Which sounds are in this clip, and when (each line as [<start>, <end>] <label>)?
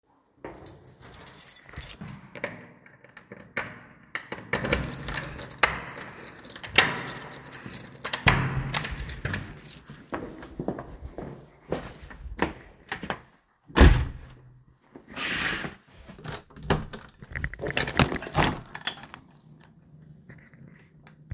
[0.00, 0.39] footsteps
[0.29, 10.28] keys
[8.21, 9.16] door
[10.07, 13.67] footsteps
[13.67, 14.31] door
[16.25, 19.33] window